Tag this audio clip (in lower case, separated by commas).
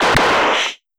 gunshot, explosion